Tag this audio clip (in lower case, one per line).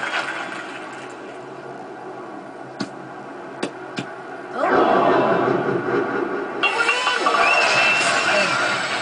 speech